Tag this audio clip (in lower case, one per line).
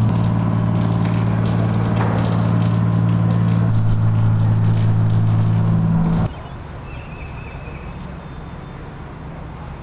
car
vehicle
motor vehicle (road)